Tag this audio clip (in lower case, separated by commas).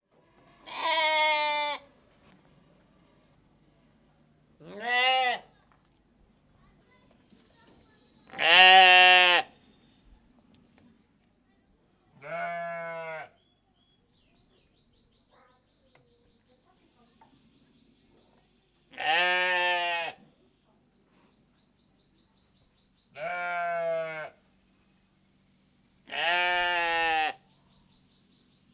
livestock, animal